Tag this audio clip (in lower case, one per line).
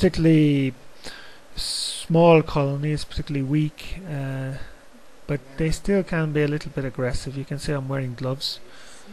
speech